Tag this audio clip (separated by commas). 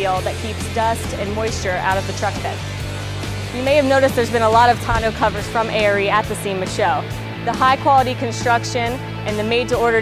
Music, Speech